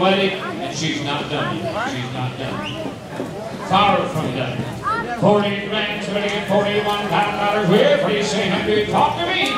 A man is giving a fast talking speech as other voices are mumbling away